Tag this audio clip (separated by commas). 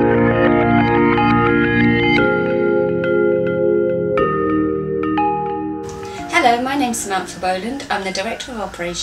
inside a small room, Speech, Music